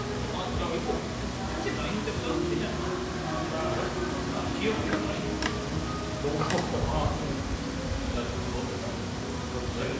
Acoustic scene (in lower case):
restaurant